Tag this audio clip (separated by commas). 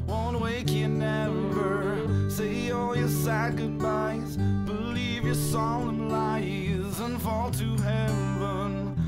Music